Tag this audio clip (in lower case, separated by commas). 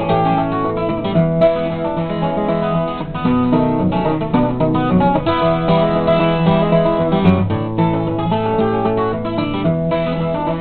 music